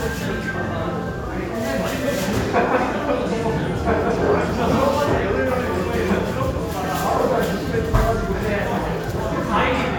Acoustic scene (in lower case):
crowded indoor space